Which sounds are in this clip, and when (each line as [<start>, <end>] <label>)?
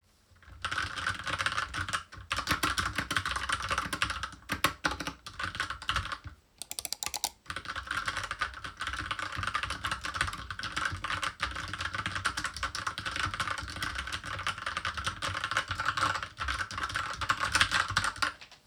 [0.56, 6.38] keyboard typing
[7.48, 18.59] keyboard typing